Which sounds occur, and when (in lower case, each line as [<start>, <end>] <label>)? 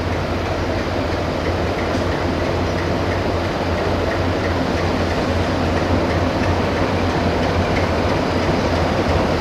[0.00, 9.40] wind
[0.01, 9.40] train
[0.65, 0.75] generic impact sounds
[1.04, 1.10] generic impact sounds
[1.32, 1.45] generic impact sounds
[1.70, 1.78] generic impact sounds
[2.04, 2.15] generic impact sounds
[2.34, 2.44] generic impact sounds
[2.69, 2.79] generic impact sounds
[3.06, 3.12] generic impact sounds
[3.39, 3.45] generic impact sounds
[3.68, 3.78] generic impact sounds
[4.01, 4.11] generic impact sounds
[4.39, 4.48] generic impact sounds
[4.68, 4.77] generic impact sounds
[5.12, 5.16] generic impact sounds
[5.71, 5.78] generic impact sounds
[6.01, 6.11] generic impact sounds
[6.35, 6.42] generic impact sounds
[6.68, 6.75] generic impact sounds
[7.00, 7.12] generic impact sounds
[7.35, 7.49] generic impact sounds
[7.72, 7.83] generic impact sounds
[8.09, 8.15] generic impact sounds
[8.35, 8.46] generic impact sounds
[9.36, 9.40] generic impact sounds